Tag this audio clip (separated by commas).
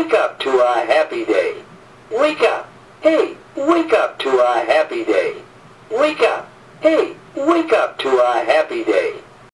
Speech